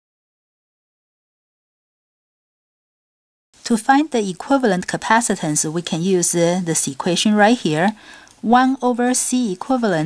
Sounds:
speech

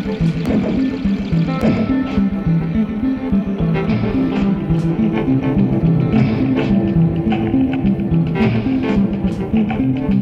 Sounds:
electronic music, music

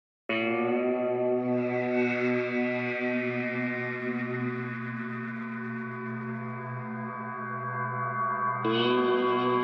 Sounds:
music, soundtrack music

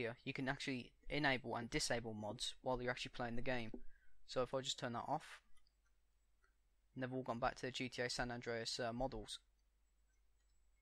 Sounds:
speech

